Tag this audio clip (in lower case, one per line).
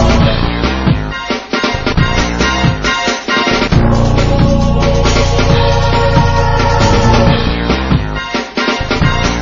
music